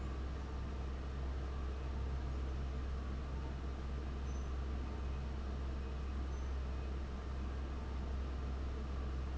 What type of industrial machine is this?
fan